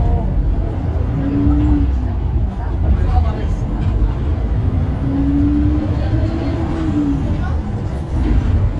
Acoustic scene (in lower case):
bus